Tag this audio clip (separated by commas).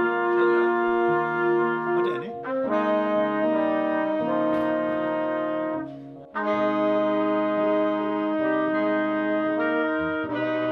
Speech, Musical instrument, Jazz, Music